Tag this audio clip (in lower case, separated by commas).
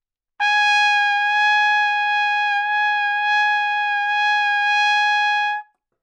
musical instrument, music, trumpet, brass instrument